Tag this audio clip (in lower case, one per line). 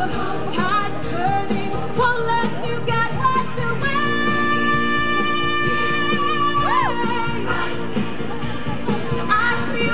music
speech